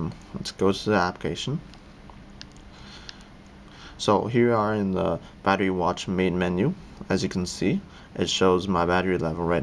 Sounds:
Speech

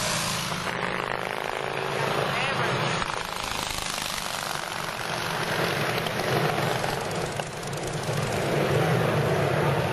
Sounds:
Vehicle, Motorcycle, auto racing, Speech

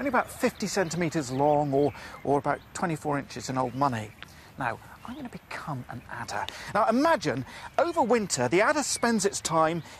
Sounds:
Speech, outside, rural or natural

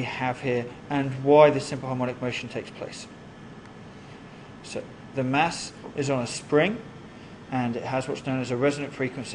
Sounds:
Speech

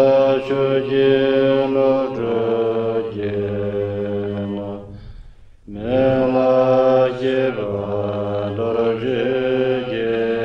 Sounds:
Mantra, Music

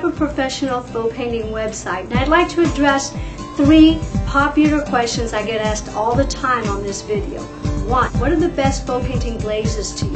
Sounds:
Speech, Music

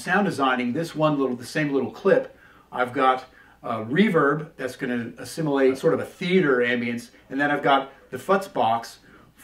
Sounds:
Speech

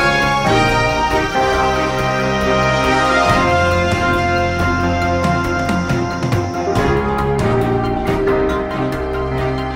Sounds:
Music, Theme music

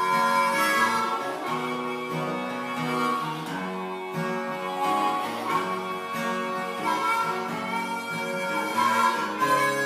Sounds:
Musical instrument, Acoustic guitar, Country, Guitar, Music, Plucked string instrument

